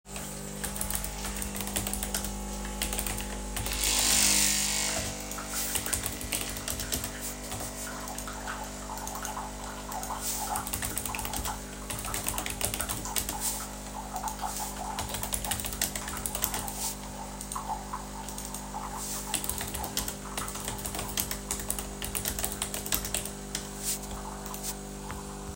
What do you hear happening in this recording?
I was typing on my keyboard while coffee machine was making coffee